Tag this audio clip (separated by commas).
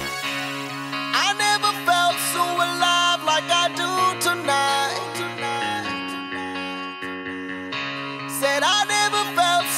Music